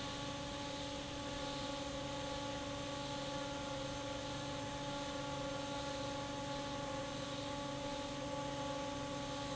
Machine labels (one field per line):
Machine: fan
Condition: normal